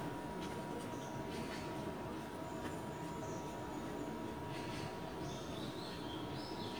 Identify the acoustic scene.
park